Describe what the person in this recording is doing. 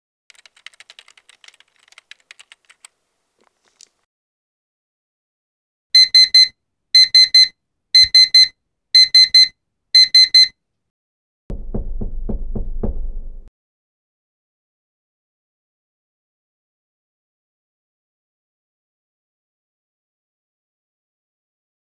Phone on desk during work session. Laptop keyboard typed for several seconds, phone alarm triggered, subject walked to window and opened it.